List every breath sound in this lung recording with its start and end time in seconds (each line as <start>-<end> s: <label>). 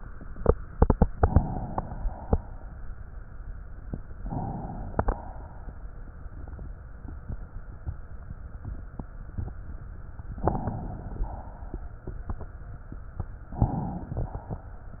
4.15-5.08 s: inhalation
5.08-6.01 s: exhalation
10.30-11.22 s: inhalation
11.21-12.13 s: exhalation
13.54-14.11 s: inhalation